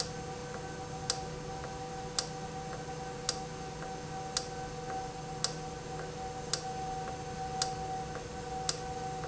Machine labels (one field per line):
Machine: valve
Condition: normal